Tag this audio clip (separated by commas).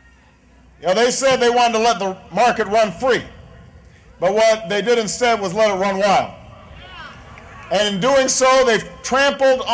Speech